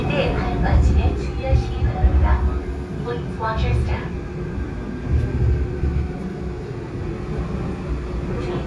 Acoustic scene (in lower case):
subway train